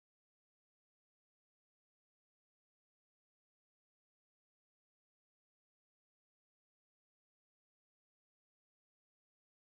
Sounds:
bathroom ventilation fan running

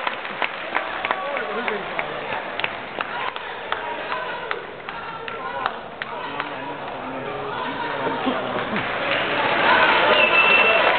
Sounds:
inside a public space, speech

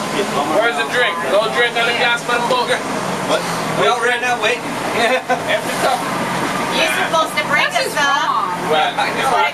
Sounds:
speech, motorboat, vehicle

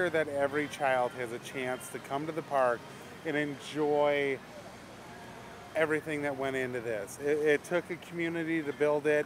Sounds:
speech

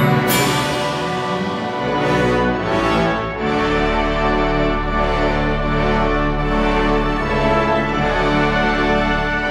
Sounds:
christmas music, theme music, soundtrack music, music, orchestra

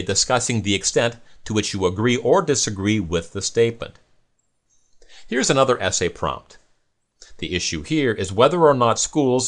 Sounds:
speech

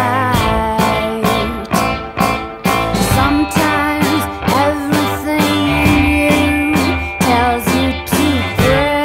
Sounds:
tender music, music

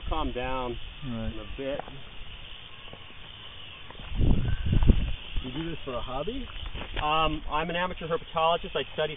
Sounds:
speech, outside, rural or natural

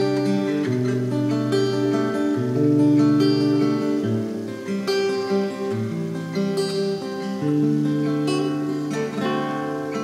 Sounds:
guitar, plucked string instrument, strum, musical instrument, music, acoustic guitar

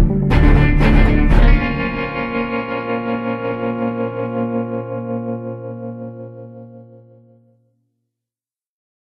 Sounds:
music, effects unit

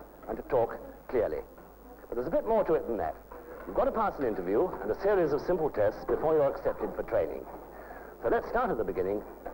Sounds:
speech

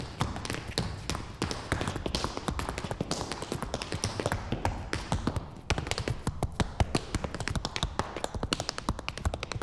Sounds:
tap dancing

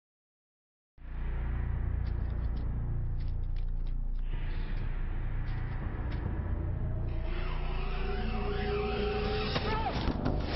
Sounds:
music

